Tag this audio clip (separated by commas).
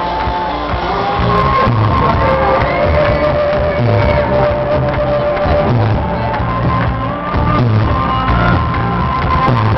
Music, Shout, Singing, Crowd